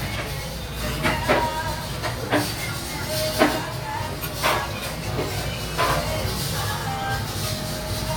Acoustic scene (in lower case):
restaurant